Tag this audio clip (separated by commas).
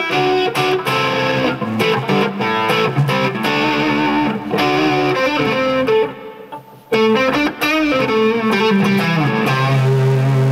Music